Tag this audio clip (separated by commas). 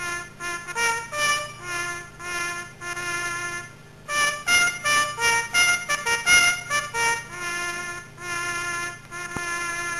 outside, rural or natural, Music